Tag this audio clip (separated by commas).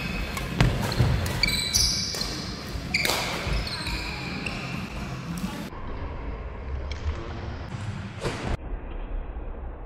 playing badminton